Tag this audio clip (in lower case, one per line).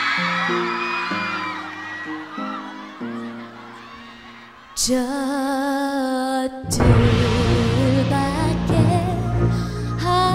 music